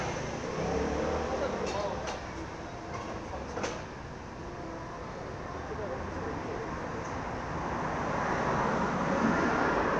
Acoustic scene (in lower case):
street